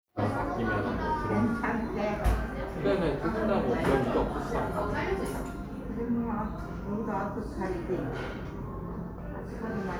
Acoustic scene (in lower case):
restaurant